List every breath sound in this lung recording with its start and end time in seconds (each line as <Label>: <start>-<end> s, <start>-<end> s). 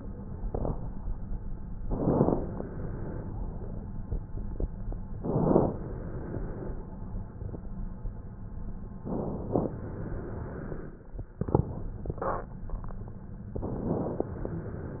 Inhalation: 0.40-0.81 s, 1.87-2.53 s, 5.19-5.77 s, 9.05-9.69 s, 13.55-14.33 s
Exhalation: 2.49-3.82 s, 5.79-7.12 s, 9.73-11.06 s, 14.36-15.00 s